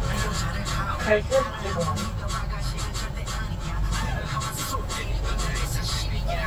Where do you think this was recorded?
in a car